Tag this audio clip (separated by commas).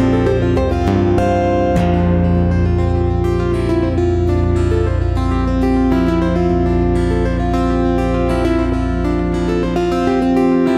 Musical instrument, Plucked string instrument, Guitar, Acoustic guitar, Music